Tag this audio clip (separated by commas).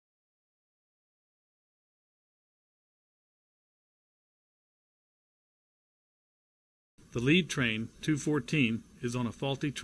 Speech